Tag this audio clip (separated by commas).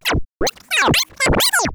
Music, Musical instrument, Scratching (performance technique)